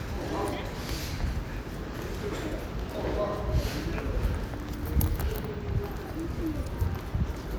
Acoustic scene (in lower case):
residential area